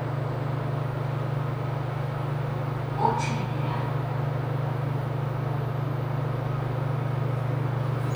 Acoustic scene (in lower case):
elevator